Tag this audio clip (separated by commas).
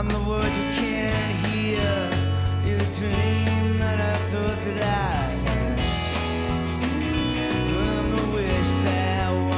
Music